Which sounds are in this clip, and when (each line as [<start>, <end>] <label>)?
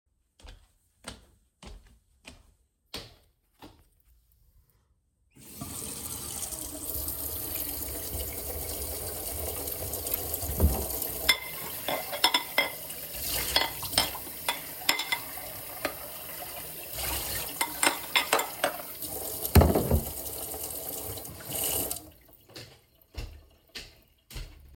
[0.34, 4.18] footsteps
[5.34, 24.75] running water
[10.08, 11.21] wardrobe or drawer
[11.24, 20.18] cutlery and dishes
[22.46, 24.69] footsteps